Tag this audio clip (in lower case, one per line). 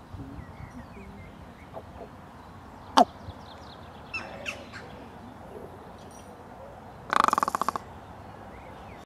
crow
bird